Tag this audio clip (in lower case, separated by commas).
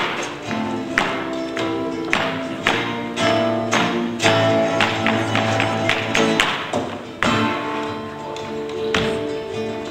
music